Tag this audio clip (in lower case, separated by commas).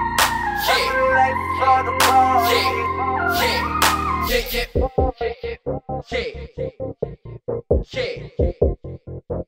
hip hop music, music